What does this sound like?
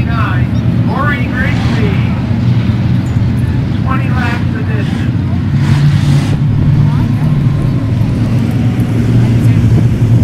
Motor barrage makes a slow rumble tone, while the speech is followed with some scrap sounds